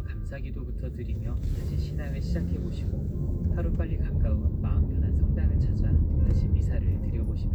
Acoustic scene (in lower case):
car